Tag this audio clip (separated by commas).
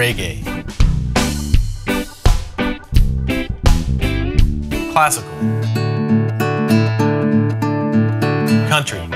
Plucked string instrument, Musical instrument, Speech, Guitar, Electric guitar, Music